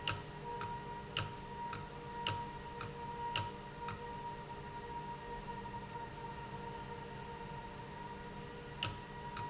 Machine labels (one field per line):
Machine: valve